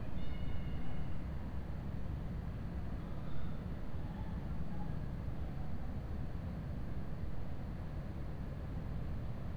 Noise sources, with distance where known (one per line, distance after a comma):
background noise